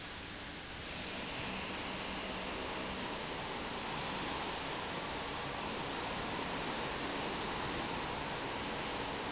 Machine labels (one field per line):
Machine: fan